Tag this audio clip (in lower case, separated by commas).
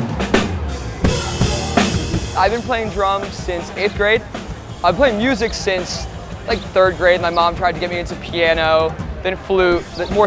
speech, music